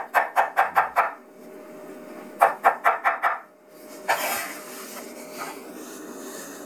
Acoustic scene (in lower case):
kitchen